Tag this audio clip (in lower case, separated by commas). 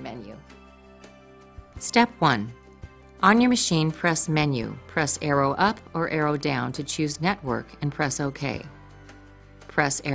speech, music